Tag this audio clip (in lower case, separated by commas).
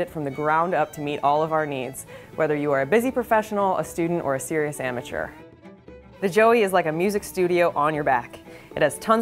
music, musical instrument, violin, speech